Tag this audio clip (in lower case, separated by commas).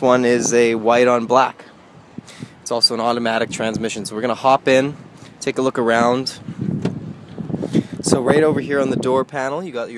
speech